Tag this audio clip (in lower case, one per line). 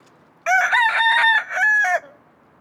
animal
livestock
fowl
chicken